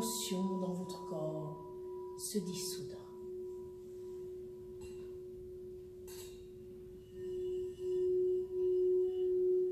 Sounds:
singing bowl

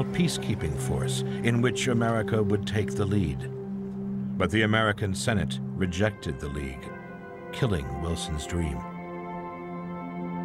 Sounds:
Music, Speech

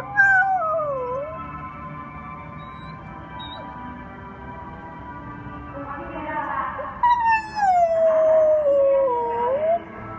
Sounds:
dog howling

